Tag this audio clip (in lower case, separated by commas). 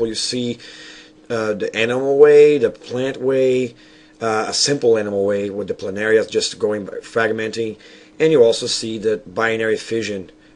speech